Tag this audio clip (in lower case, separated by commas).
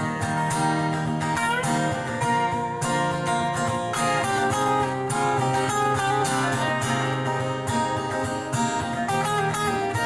acoustic guitar, guitar, strum, music, plucked string instrument, musical instrument